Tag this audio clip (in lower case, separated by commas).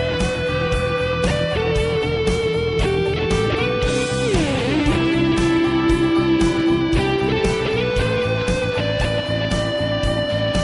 plucked string instrument, guitar, music, musical instrument